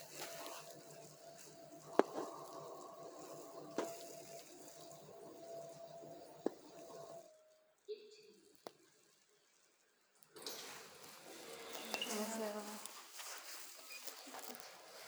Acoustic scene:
elevator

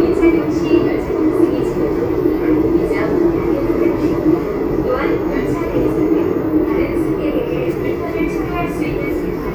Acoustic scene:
subway train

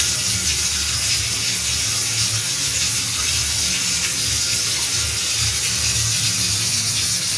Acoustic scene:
restroom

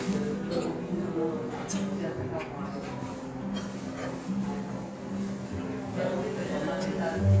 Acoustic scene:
restaurant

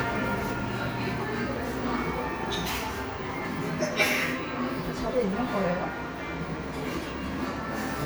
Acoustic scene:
cafe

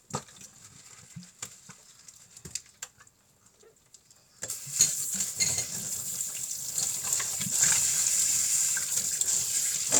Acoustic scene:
kitchen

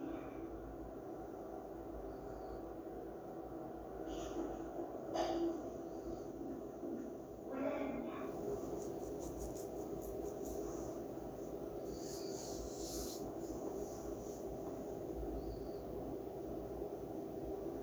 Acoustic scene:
elevator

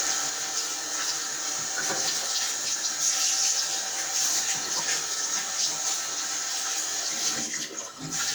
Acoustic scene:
restroom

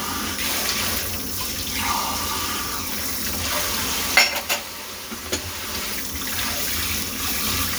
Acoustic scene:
kitchen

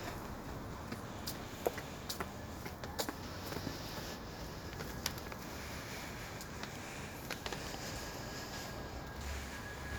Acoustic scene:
street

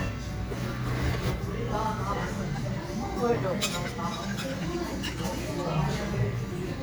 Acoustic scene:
cafe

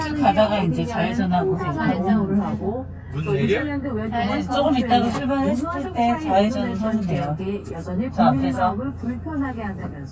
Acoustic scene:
car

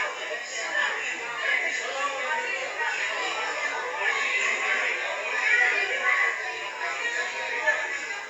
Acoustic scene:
crowded indoor space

